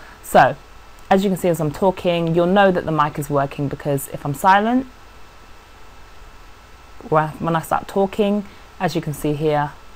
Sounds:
Speech

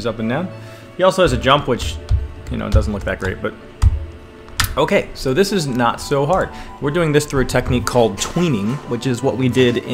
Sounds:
Music, Speech

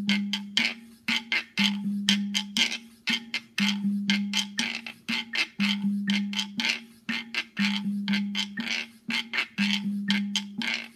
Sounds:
playing guiro

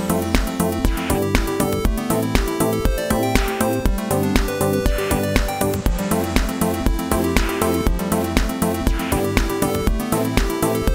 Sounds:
Music, Sound effect

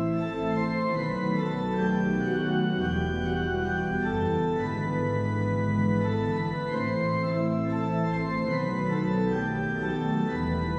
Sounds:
playing electronic organ

